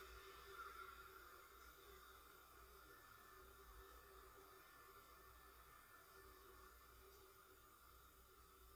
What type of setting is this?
residential area